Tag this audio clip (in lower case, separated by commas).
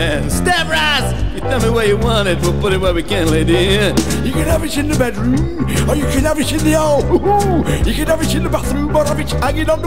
music, speech